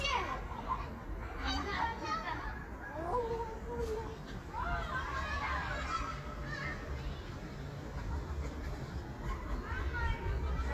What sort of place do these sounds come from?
park